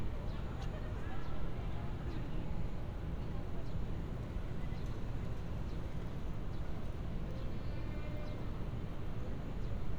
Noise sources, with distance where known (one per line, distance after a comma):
music from a fixed source, far
person or small group talking, far